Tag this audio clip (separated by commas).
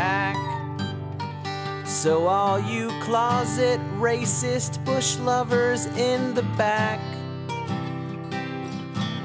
Music